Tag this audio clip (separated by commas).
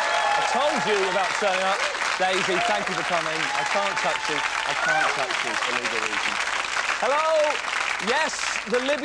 Speech